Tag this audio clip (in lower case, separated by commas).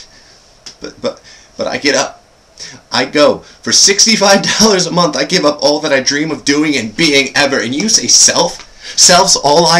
speech, monologue